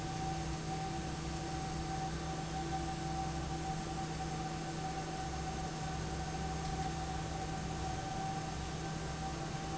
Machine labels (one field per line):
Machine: fan